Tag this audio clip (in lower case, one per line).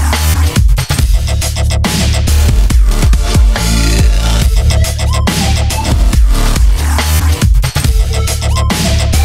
electronic music
dubstep
music